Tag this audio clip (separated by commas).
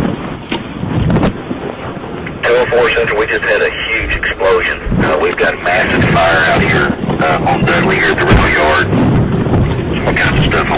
Speech